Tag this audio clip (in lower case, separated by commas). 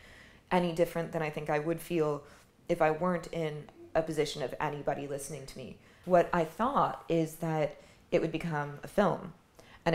speech